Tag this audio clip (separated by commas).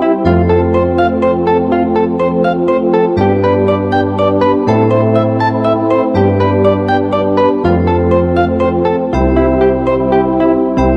Music